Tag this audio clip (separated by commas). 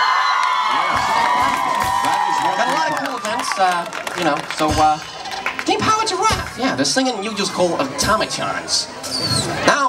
Music, Speech